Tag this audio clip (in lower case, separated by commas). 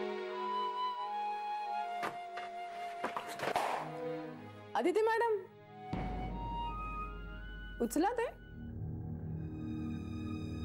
inside a small room, speech, music